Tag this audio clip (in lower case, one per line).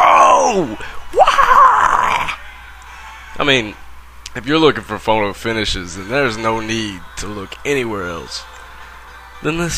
speech
music